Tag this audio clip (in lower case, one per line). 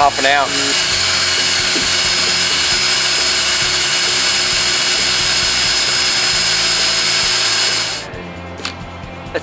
tools
power tool